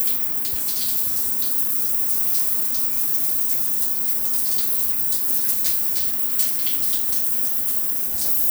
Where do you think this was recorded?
in a restroom